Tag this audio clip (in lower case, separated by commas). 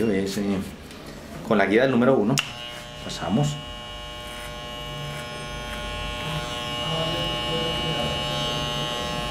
cutting hair with electric trimmers